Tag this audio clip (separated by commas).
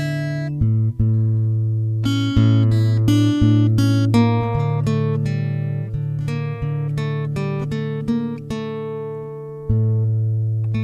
Guitar, Strum, Musical instrument, Music, Plucked string instrument